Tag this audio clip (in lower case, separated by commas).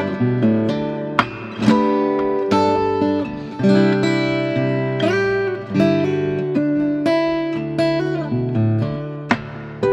guitar, acoustic guitar, plucked string instrument, music, musical instrument, strum, bass guitar